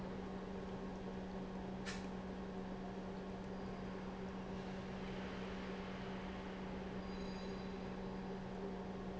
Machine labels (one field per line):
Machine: pump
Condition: normal